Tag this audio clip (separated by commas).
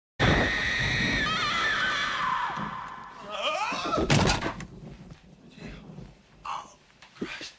Speech